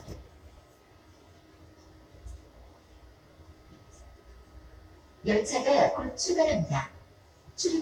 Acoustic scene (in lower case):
subway train